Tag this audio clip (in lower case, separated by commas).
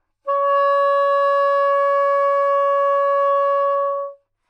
musical instrument, music, wind instrument